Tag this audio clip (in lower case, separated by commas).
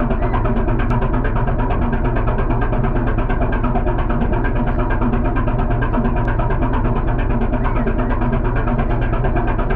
heavy engine (low frequency)